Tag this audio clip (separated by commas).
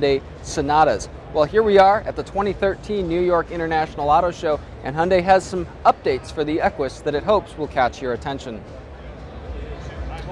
Speech